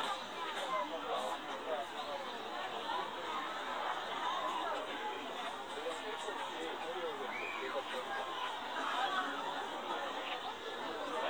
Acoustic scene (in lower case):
park